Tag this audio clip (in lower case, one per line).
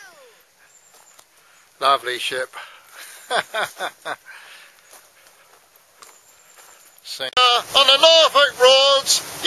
speech